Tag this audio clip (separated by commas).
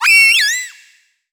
Animal